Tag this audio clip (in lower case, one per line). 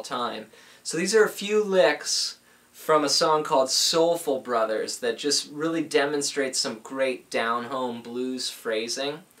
speech